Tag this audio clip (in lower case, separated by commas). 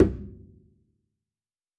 musical instrument, music, bowed string instrument